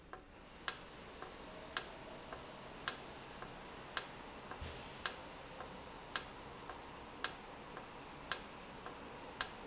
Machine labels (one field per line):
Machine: valve